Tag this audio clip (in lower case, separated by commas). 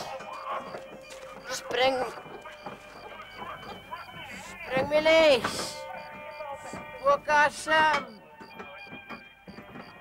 music, speech